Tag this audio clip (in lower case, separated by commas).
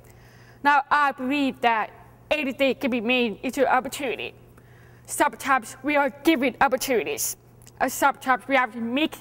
speech